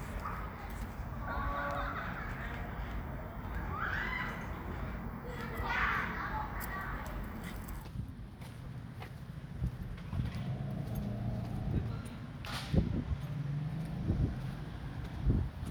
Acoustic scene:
residential area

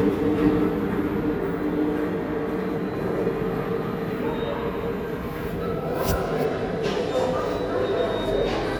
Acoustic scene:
subway station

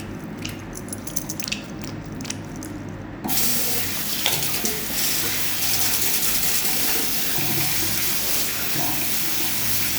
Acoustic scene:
restroom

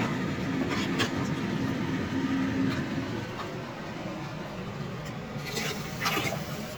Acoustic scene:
kitchen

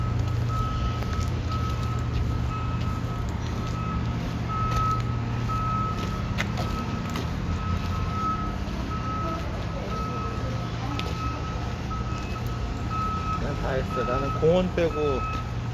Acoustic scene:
residential area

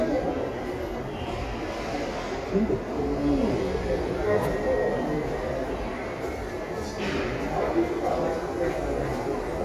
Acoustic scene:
crowded indoor space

